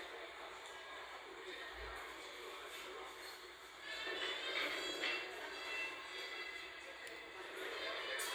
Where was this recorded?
in a crowded indoor space